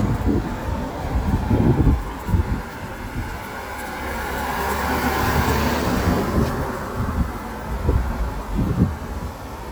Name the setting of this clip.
street